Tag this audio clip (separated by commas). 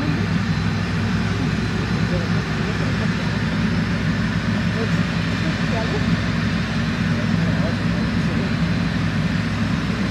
Truck, Speech, Vehicle